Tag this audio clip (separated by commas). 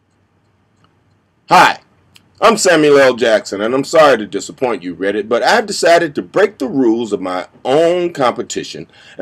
Speech, Narration